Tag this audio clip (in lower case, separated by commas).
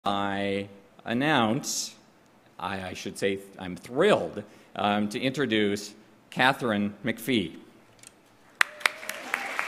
applause, speech